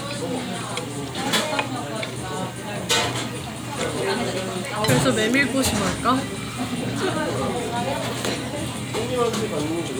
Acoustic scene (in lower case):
crowded indoor space